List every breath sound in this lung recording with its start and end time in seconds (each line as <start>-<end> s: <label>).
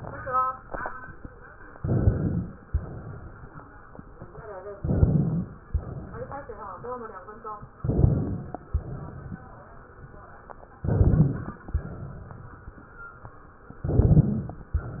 1.75-2.62 s: inhalation
1.84-2.41 s: rhonchi
2.69-3.57 s: exhalation
4.76-5.64 s: inhalation
4.93-5.50 s: rhonchi
5.73-6.60 s: exhalation
7.78-8.65 s: inhalation
7.88-8.44 s: rhonchi
8.65-9.47 s: exhalation
10.80-11.67 s: inhalation
10.87-11.44 s: rhonchi
11.73-12.69 s: exhalation
13.85-14.72 s: inhalation
13.85-14.72 s: crackles